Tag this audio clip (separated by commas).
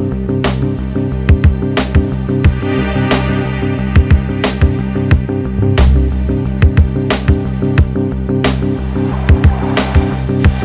Music